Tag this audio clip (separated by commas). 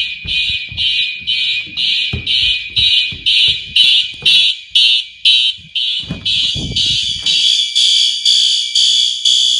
Fire alarm